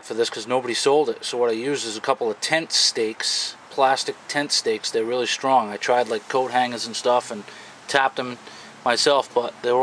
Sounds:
Speech

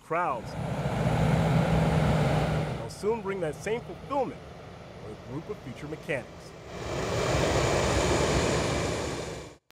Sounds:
Vehicle, Speech, Aircraft, Fixed-wing aircraft

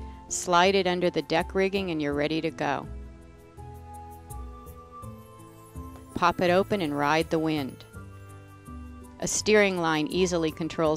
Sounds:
Speech, Music

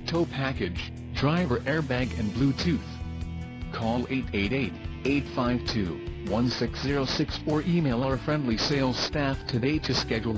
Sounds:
Speech, Music

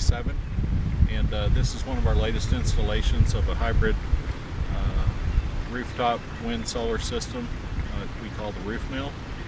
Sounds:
Speech

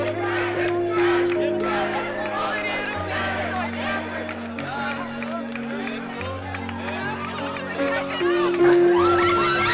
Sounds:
Music, Speech

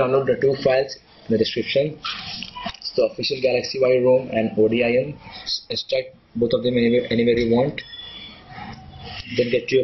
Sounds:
Speech

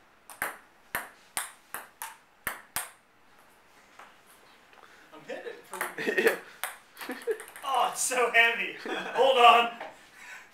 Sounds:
Speech

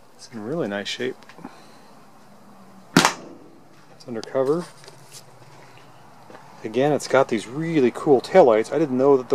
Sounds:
inside a large room or hall, Speech

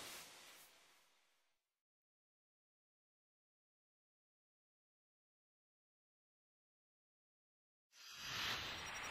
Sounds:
Music

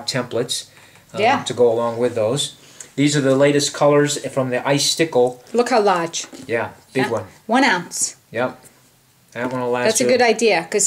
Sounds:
Speech

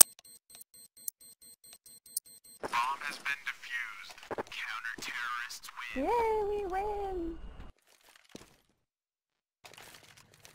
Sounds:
Speech

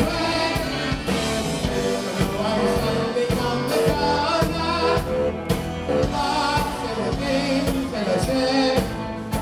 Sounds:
Music

